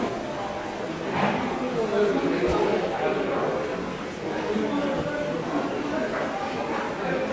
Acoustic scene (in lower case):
subway station